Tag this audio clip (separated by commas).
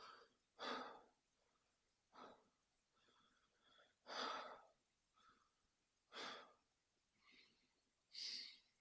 Breathing, Respiratory sounds